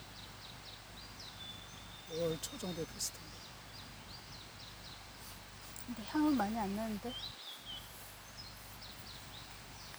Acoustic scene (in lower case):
park